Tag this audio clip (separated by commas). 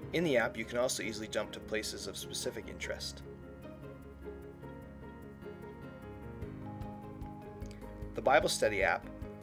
Speech, Music